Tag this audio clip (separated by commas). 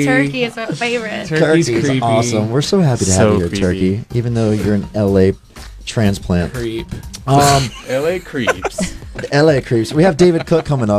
Music, Speech